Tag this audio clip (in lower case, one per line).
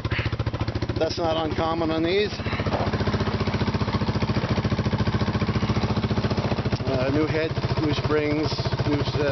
vehicle
car
speech